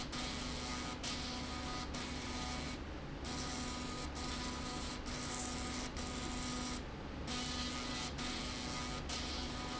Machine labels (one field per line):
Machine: slide rail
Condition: abnormal